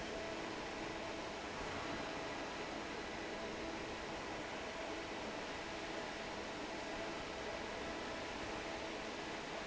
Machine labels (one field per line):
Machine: fan